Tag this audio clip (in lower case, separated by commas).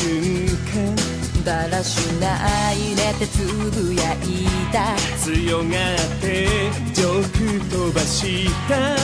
music